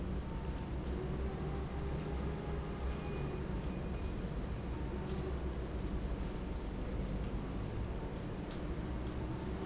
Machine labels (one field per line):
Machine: fan